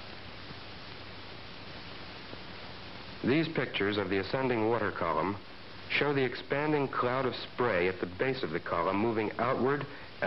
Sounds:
speech

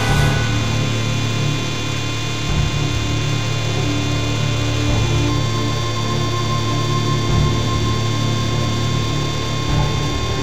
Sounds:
music

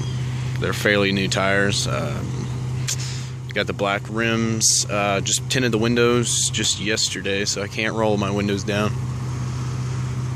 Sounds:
speech, vehicle

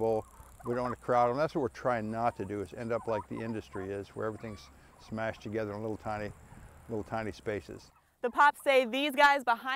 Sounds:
fowl, gobble, turkey

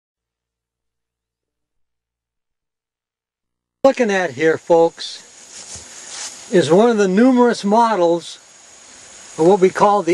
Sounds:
silence, outside, rural or natural, speech

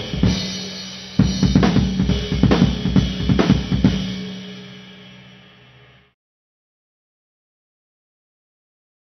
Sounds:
dance music, music

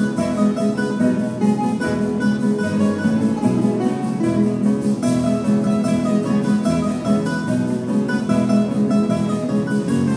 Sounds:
music, musical instrument, guitar, strum

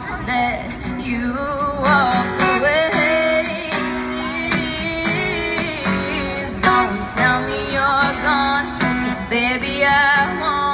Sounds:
female singing, music

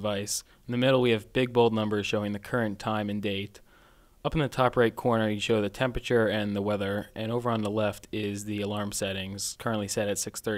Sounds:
speech

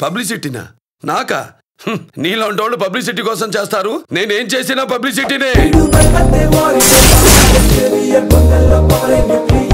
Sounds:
music, speech

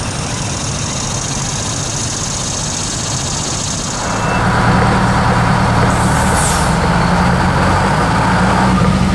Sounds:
truck, vehicle

